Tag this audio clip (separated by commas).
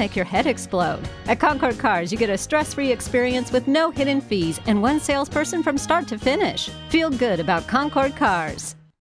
Music, Speech